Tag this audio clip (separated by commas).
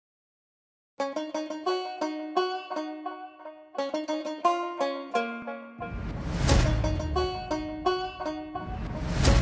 inside a small room, Music